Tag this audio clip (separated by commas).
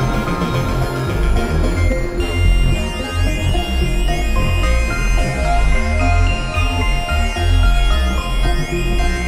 Music, Musical instrument, Synthesizer